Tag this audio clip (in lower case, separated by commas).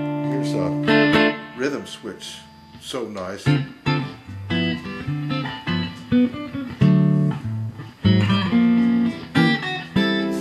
speech, strum, music, plucked string instrument, musical instrument, guitar, electric guitar